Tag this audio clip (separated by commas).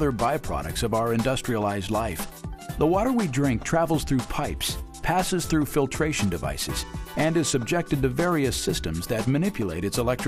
Music, Speech